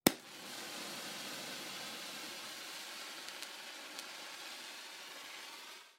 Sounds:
Fire

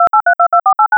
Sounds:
Telephone, Alarm

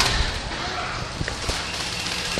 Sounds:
Water vehicle, Vehicle

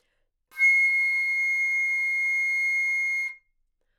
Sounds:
Musical instrument, Music, woodwind instrument

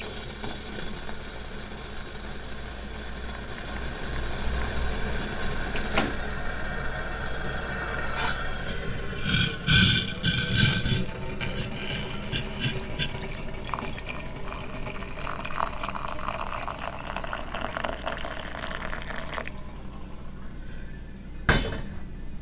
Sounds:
Boiling, Liquid

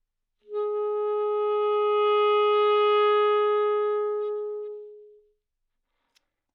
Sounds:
Musical instrument, Music, woodwind instrument

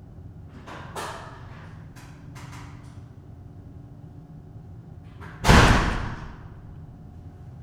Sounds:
Door, Domestic sounds, Slam

